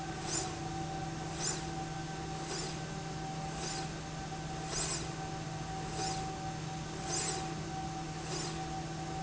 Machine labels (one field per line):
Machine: slide rail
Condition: normal